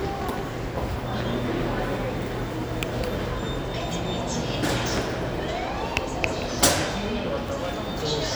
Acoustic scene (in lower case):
subway station